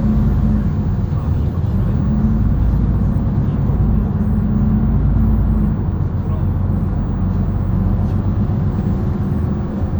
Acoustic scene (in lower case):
bus